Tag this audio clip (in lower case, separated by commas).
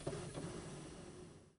printer, mechanisms